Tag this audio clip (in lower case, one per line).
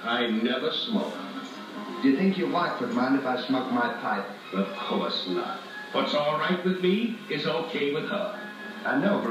music
speech